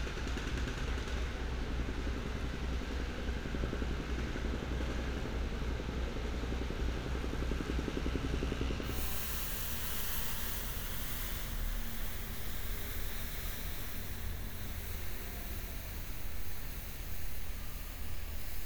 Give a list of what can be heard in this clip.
engine of unclear size